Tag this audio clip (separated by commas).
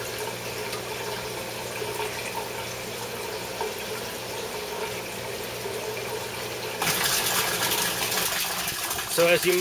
Speech, Fill (with liquid), inside a small room, Water